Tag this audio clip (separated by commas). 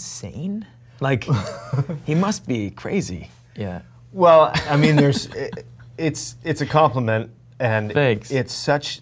Speech